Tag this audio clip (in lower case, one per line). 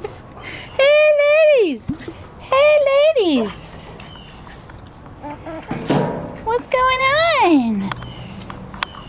speech